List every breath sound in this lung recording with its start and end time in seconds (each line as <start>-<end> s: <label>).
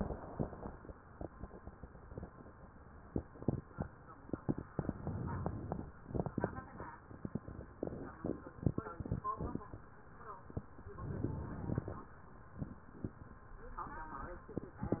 4.77-5.91 s: inhalation
10.90-12.04 s: inhalation